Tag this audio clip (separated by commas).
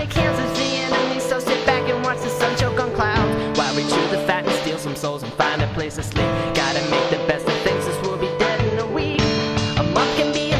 Music